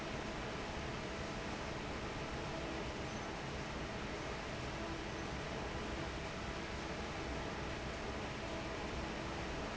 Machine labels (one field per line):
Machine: fan